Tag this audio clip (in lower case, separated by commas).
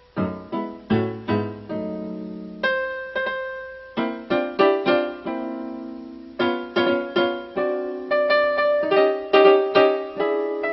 music